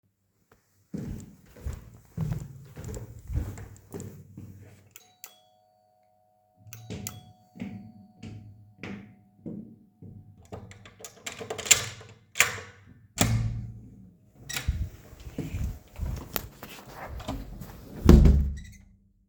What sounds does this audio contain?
footsteps, bell ringing, door